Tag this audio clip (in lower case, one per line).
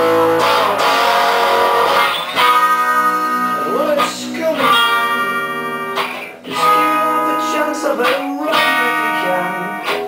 musical instrument
singing
plucked string instrument
guitar
inside a small room
music